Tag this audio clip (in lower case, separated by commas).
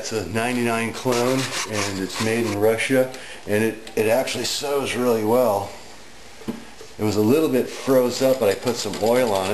speech, sewing machine